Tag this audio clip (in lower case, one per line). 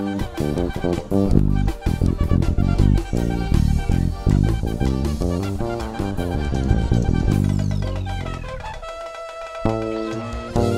music
bass guitar
playing bass guitar
guitar
plucked string instrument
musical instrument